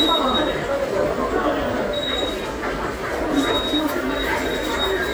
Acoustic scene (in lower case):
subway station